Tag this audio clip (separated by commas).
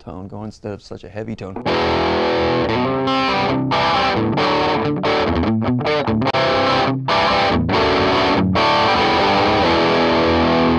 Music, Musical instrument, Plucked string instrument, Acoustic guitar, Speech, Guitar, Electric guitar